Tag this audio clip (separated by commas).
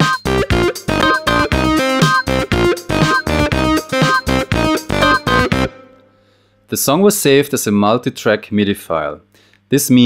Speech, Music